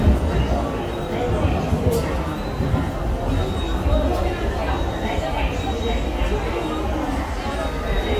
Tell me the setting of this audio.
subway station